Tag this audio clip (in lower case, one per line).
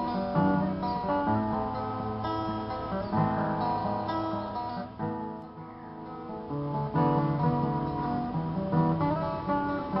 music